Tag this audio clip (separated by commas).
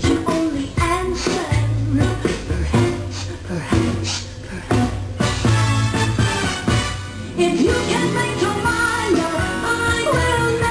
Music